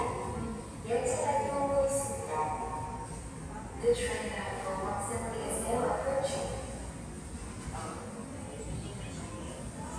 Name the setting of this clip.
subway station